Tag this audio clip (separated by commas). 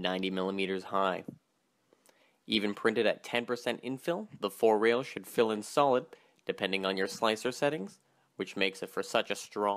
Speech